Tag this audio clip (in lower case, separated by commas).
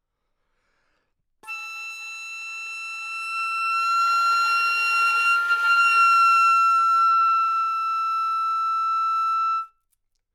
music, woodwind instrument, musical instrument